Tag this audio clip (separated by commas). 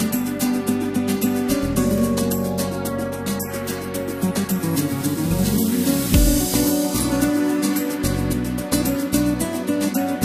Music